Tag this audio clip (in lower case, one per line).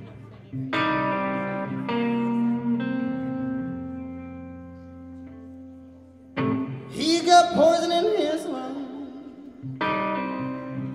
music